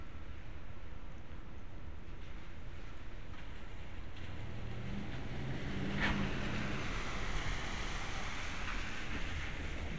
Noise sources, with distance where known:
medium-sounding engine

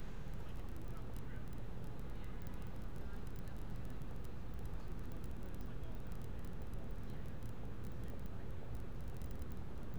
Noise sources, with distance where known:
background noise

